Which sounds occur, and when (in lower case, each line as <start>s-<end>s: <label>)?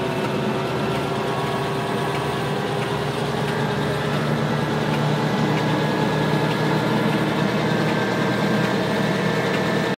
0.0s-9.8s: helicopter